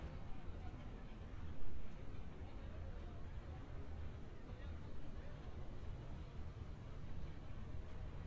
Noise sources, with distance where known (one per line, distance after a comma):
person or small group talking, far